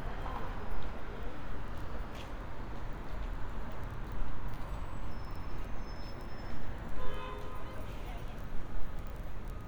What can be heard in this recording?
car horn